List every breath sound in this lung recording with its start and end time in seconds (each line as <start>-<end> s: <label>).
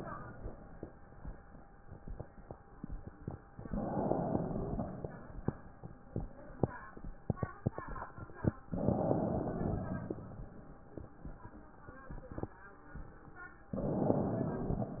3.59-5.18 s: inhalation
8.74-10.33 s: inhalation
13.72-15.00 s: inhalation